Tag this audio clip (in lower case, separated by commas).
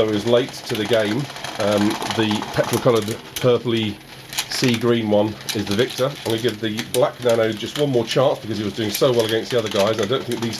inside a small room, speech